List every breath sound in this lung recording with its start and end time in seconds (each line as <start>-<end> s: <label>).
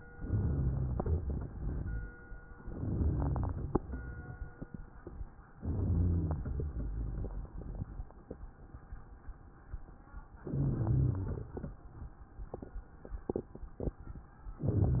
0.12-0.89 s: inhalation
0.12-0.91 s: rhonchi
0.97-1.77 s: exhalation
2.66-3.46 s: rhonchi
2.68-3.47 s: inhalation
3.57-4.37 s: exhalation
5.64-6.43 s: inhalation
5.64-6.43 s: rhonchi
6.47-7.27 s: exhalation
10.44-11.23 s: inhalation
10.44-11.23 s: rhonchi
11.25-11.90 s: exhalation